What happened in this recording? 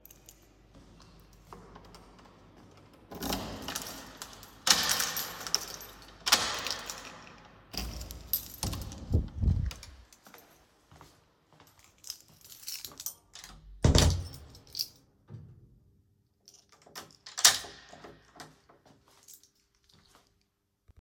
i came to my door and checked my key. i inserted the key into the lock and used it to open the door. After opening it i entered my room closed the door behind me and locked it from the inside.